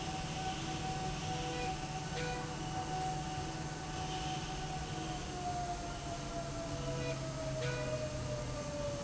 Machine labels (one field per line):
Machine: slide rail